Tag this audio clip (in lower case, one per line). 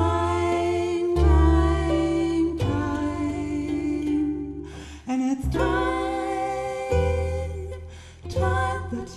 cello
bowed string instrument
double bass
pizzicato